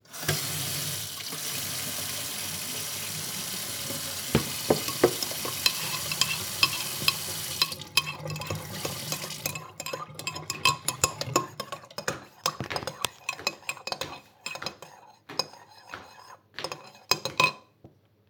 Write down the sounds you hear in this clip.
running water, cutlery and dishes, footsteps